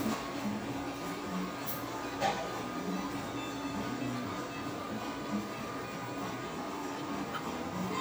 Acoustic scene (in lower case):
cafe